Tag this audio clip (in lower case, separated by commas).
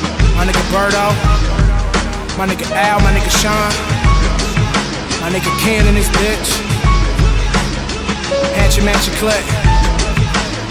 music, soundtrack music